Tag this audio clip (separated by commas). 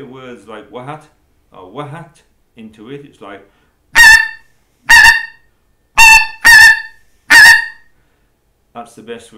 Speech